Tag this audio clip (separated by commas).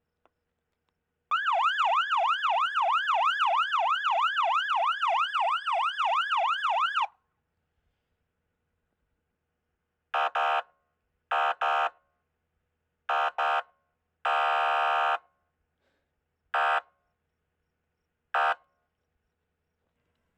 Vehicle, Alarm, Siren, Motor vehicle (road)